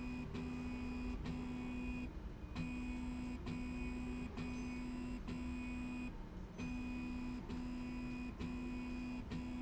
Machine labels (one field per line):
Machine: slide rail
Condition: normal